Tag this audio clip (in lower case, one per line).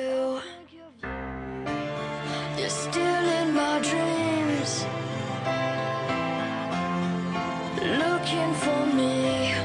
music